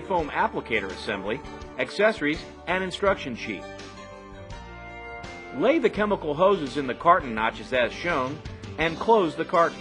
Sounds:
Speech, Music

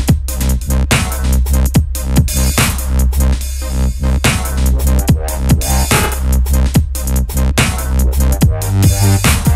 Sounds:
Electronic music, Music, Dubstep

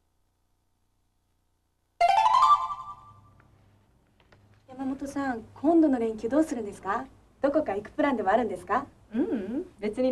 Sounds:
inside a small room, Speech, Music

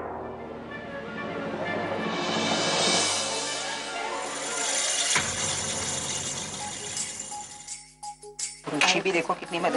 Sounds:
Music, Speech

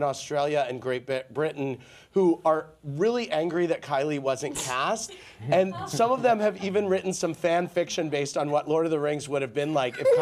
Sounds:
Speech

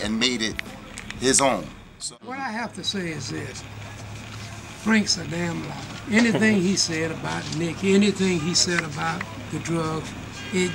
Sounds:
Speech

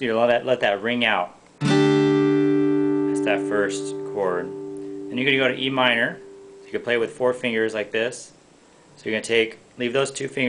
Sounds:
Music, Speech, Guitar, Musical instrument, Plucked string instrument

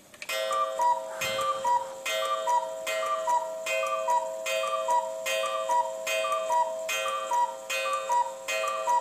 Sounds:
Alarm clock, Tick, Clock, Tick-tock

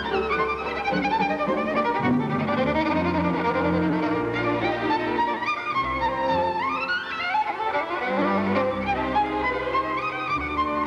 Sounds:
fiddle, Bowed string instrument

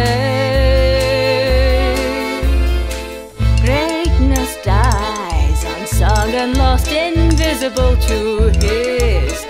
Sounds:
Singing, inside a large room or hall, Violin, Music

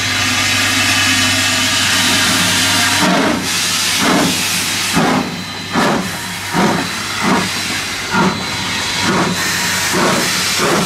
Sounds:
Engine, Vehicle, Heavy engine (low frequency)

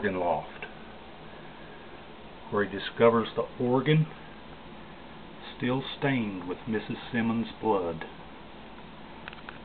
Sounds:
Speech

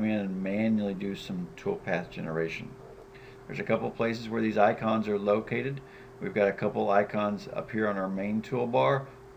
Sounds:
Speech

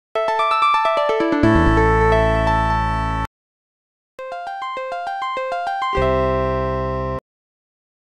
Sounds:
Music

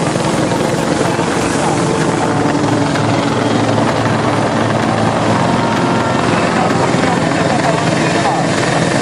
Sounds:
Vehicle, Music, Aircraft, Speech, Helicopter

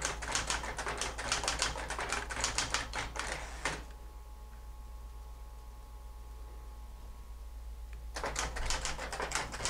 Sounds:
Typewriter

